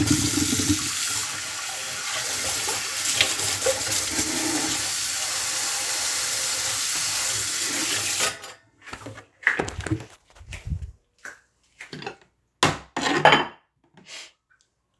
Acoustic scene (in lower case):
kitchen